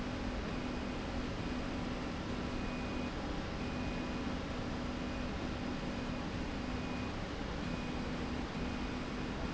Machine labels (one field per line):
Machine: slide rail